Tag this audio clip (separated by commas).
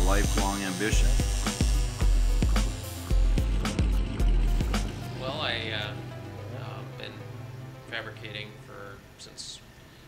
Music, Speech